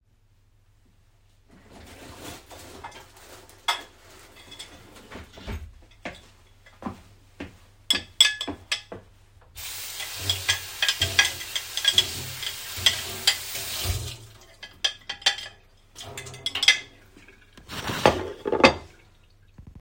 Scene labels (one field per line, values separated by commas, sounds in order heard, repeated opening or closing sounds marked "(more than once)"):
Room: kitchen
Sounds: wardrobe or drawer, cutlery and dishes, footsteps, running water